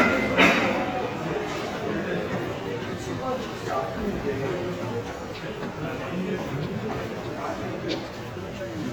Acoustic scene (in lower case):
crowded indoor space